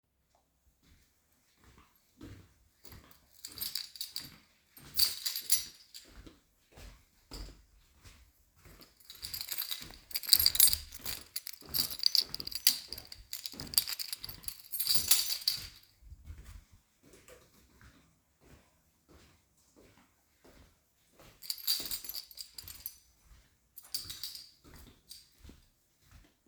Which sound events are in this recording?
footsteps, keys